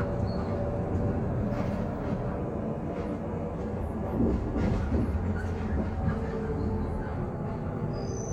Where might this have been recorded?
on a bus